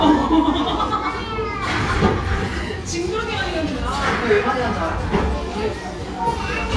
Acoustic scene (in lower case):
cafe